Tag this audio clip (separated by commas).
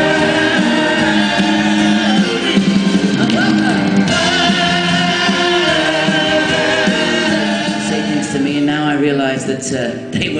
Singing, Vocal music, Music